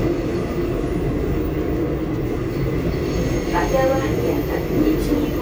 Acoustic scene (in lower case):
subway train